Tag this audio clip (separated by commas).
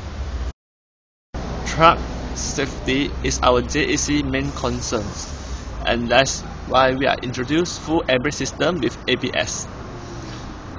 Speech, Vehicle